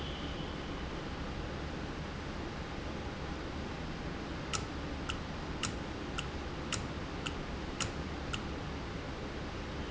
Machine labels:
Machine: valve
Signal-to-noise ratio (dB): -6 dB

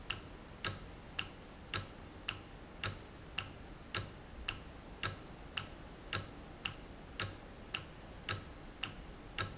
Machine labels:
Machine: valve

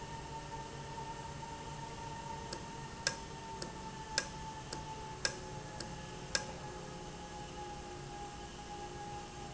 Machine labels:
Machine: valve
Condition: normal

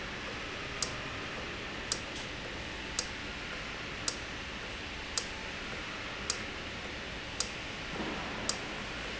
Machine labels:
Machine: valve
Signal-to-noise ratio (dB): -6 dB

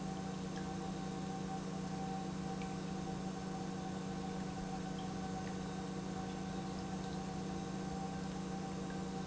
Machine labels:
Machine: pump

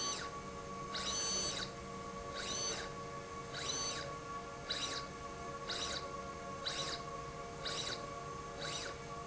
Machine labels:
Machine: slide rail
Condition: abnormal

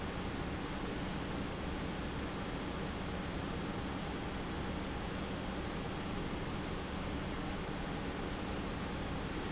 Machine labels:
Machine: pump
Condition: normal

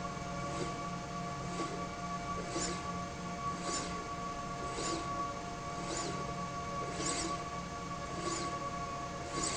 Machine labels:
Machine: slide rail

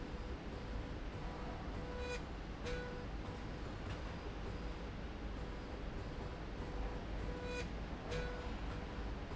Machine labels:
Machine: slide rail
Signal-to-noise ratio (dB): 0 dB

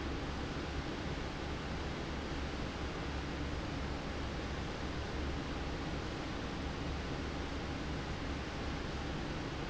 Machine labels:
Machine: fan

